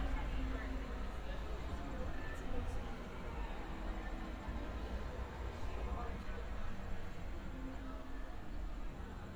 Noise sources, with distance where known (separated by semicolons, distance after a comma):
person or small group talking, near